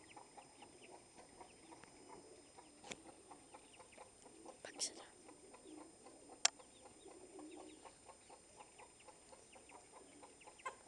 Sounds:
speech, animal

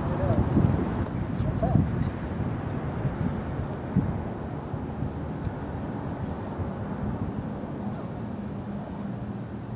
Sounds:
speech

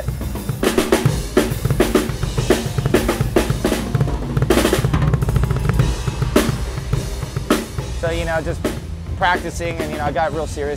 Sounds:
hi-hat, cymbal

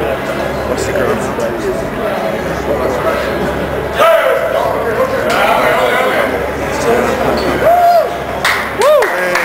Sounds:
speech

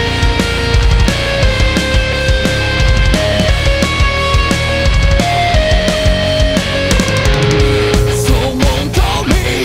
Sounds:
exciting music, music

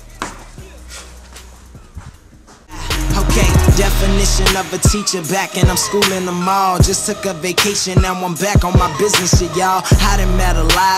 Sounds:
music, exciting music

